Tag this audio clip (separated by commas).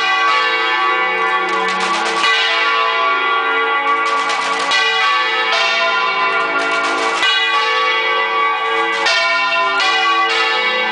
Bell, Church bell, church bell ringing